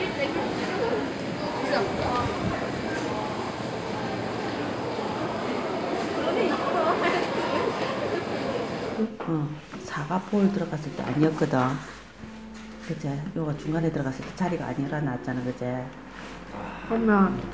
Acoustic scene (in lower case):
crowded indoor space